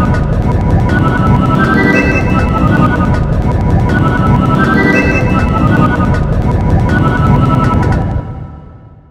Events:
0.0s-9.1s: music

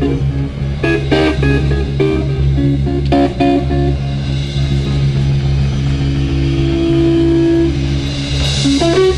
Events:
0.0s-9.1s: music
3.0s-3.1s: tick

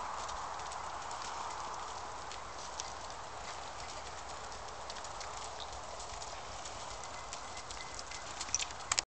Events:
0.0s-9.0s: clip-clop
0.0s-9.0s: mechanisms
0.8s-0.9s: bell
1.5s-1.5s: bell
2.2s-2.9s: bell
4.8s-4.9s: bell
7.0s-8.2s: bell
8.4s-8.7s: generic impact sounds
8.8s-9.0s: bell
8.9s-9.0s: generic impact sounds

